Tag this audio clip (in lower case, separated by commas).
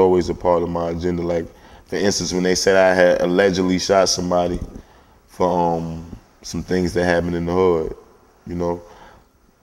speech